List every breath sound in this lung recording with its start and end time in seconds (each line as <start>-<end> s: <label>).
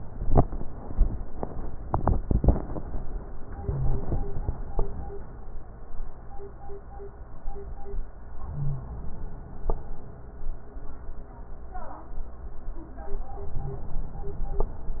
3.54-4.70 s: inhalation
3.71-4.00 s: wheeze
8.44-9.67 s: inhalation
8.57-8.86 s: wheeze
13.41-14.64 s: inhalation
13.61-13.90 s: wheeze